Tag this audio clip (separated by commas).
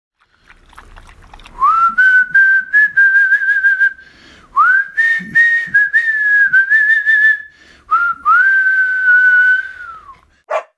inside a small room